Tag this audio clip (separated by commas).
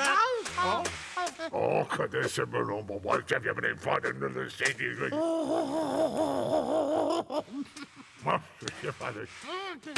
Speech